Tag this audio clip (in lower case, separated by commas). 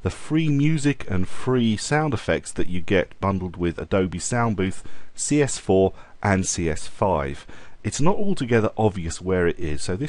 speech